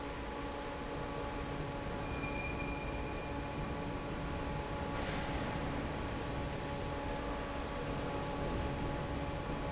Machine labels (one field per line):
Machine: fan